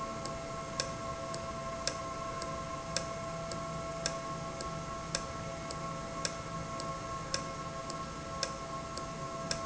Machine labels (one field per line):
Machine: valve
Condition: normal